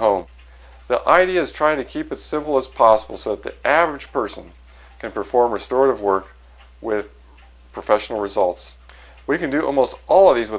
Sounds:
Music

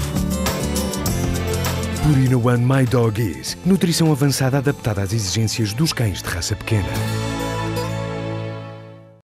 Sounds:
Music, Speech

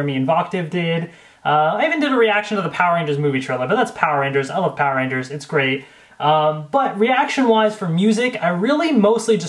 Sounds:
Speech

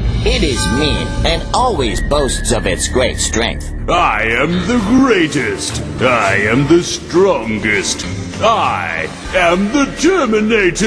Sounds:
Music, Speech

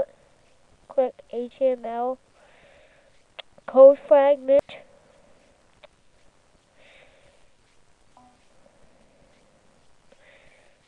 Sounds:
Speech

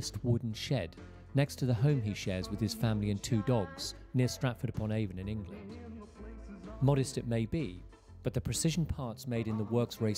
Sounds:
Speech, Music

